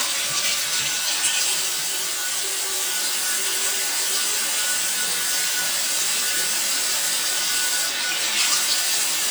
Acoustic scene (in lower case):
restroom